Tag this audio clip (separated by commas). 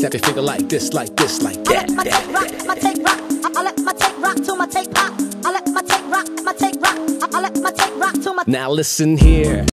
Music